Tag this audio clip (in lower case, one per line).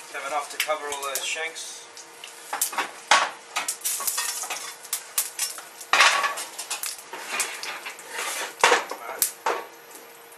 cutlery
dishes, pots and pans